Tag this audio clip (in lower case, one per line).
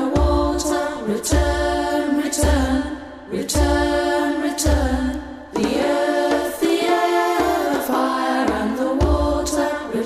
music
vocal music